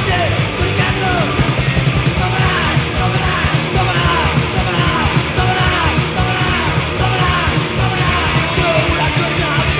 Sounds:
Music

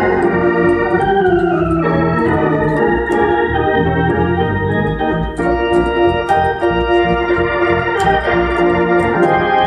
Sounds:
playing hammond organ

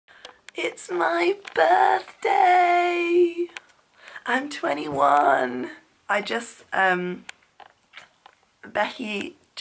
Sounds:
Speech

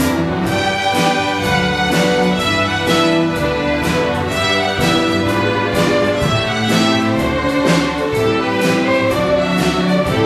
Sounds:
Music

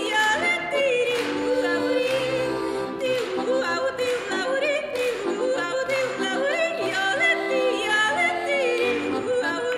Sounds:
yodelling

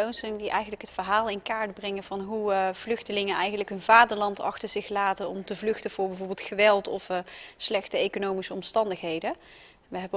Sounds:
Speech

